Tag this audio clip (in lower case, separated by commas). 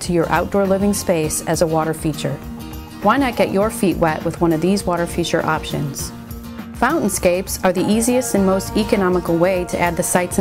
speech, music